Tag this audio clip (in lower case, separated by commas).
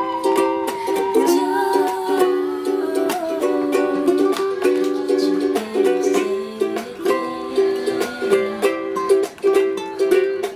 ukulele, music, inside a small room